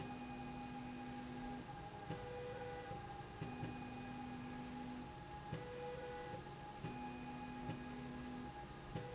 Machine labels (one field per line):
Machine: slide rail